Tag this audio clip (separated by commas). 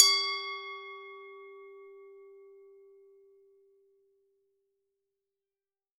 Glass